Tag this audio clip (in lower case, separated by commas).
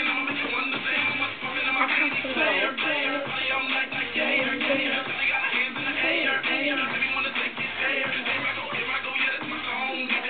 music, child singing